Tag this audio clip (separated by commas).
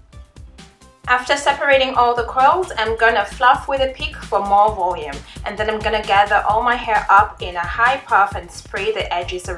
Music, Speech